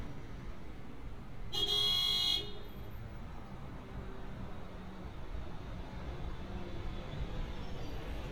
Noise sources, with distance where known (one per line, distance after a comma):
car horn, near